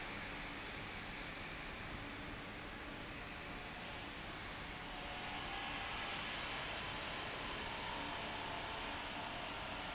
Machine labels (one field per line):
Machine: fan